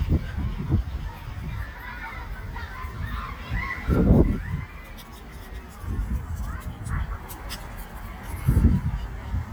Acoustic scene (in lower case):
residential area